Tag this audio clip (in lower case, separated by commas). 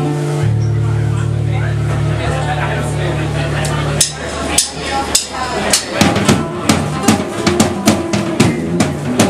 speech, music